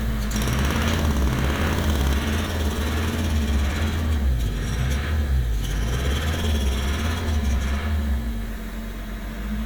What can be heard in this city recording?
unidentified impact machinery